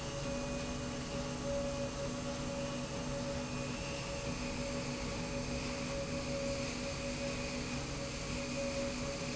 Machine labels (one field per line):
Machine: slide rail